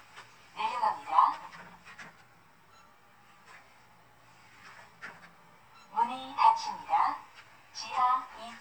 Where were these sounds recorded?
in an elevator